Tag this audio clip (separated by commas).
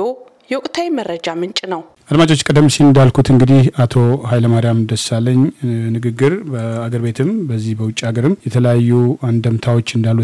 Speech